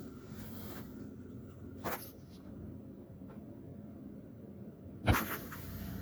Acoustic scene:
car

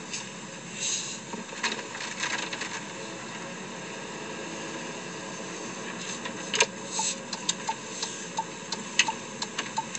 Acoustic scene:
car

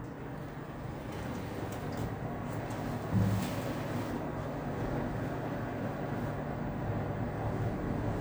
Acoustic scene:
elevator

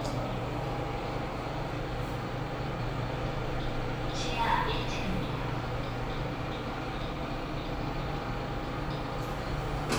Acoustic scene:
elevator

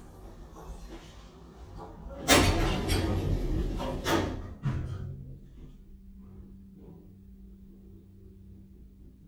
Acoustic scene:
elevator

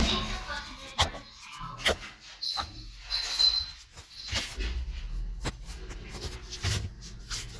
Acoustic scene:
elevator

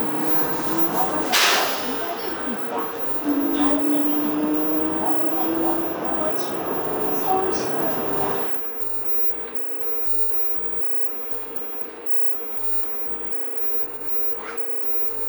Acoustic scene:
bus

